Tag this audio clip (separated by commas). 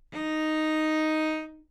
Bowed string instrument, Music, Musical instrument